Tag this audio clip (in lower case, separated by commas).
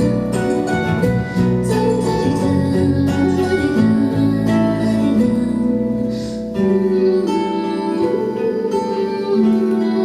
guitar, music, plucked string instrument, singing, acoustic guitar, musical instrument